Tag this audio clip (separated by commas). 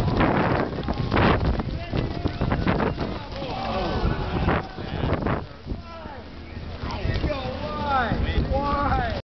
Music, Speech